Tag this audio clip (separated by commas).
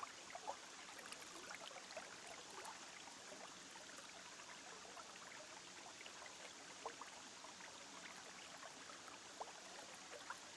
Silence